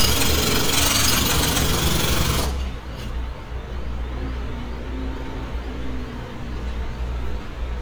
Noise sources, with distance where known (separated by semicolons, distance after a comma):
jackhammer, near